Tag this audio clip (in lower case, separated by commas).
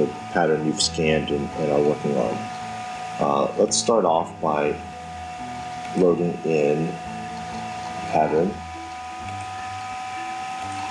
speech, music